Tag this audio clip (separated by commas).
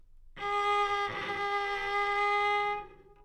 Bowed string instrument, Music, Musical instrument